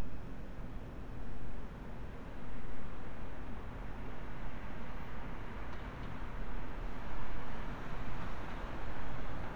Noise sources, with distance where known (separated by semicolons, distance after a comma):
medium-sounding engine